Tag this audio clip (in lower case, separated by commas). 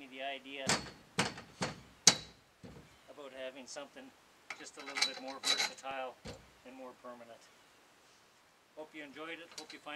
speech